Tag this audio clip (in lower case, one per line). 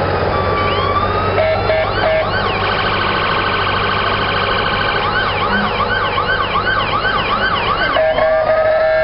emergency vehicle
fire engine
car alarm
siren
ambulance (siren)
ambulance siren